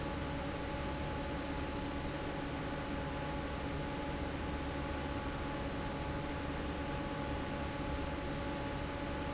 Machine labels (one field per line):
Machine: fan